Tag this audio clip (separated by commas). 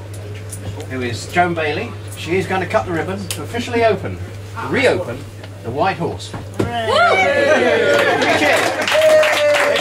Speech